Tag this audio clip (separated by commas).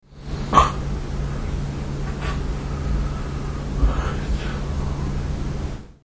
Respiratory sounds, Breathing